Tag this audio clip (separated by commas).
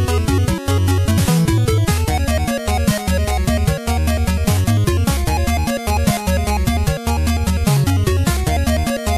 Video game music, Music